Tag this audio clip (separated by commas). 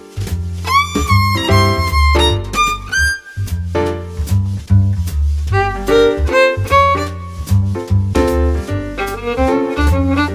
fiddle, Musical instrument, Music